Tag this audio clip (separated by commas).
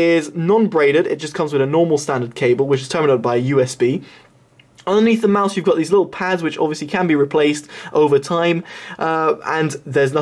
Speech